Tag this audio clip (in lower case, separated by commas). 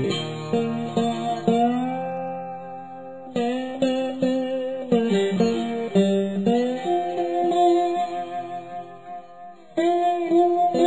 plucked string instrument, music, musical instrument, guitar, strum